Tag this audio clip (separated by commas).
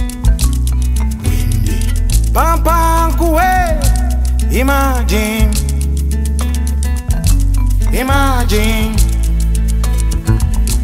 Soundtrack music, Happy music, Jazz, Music, Exciting music